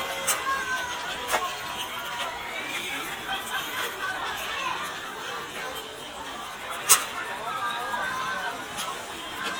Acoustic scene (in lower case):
park